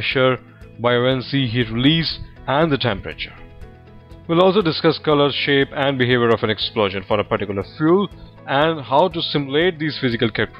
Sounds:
Music, Speech

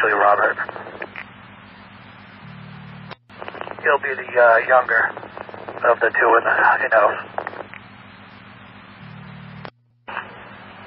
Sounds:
police radio chatter

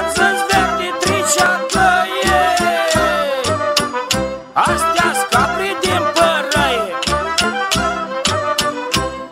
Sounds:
Music

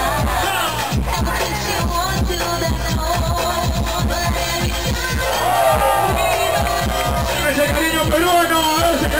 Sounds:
Music, Speech

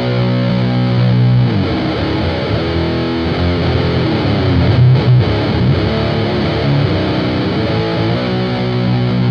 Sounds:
Music

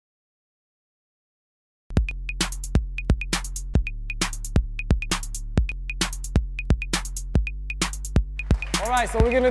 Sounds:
Speech, Music, Drum machine

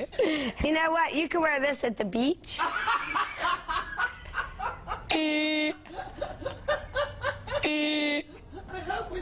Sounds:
Speech

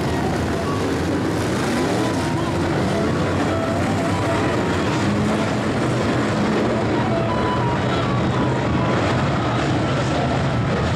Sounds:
Car passing by

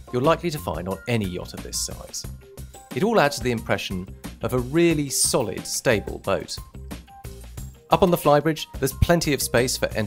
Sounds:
Speech, Music

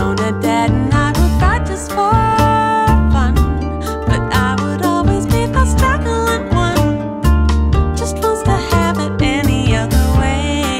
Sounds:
Rhythm and blues, Music

